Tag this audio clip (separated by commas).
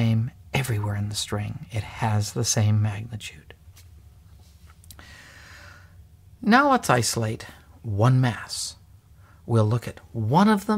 Speech